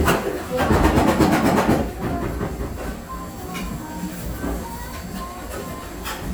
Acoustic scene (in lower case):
cafe